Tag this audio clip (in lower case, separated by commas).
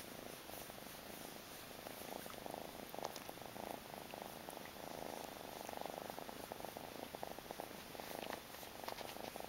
inside a small room